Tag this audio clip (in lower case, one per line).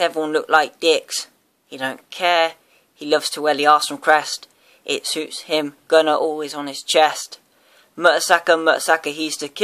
speech